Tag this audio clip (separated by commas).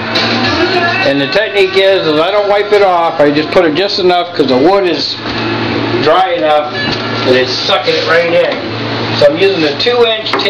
Speech